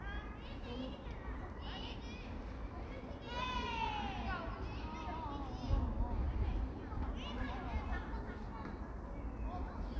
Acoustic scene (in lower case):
park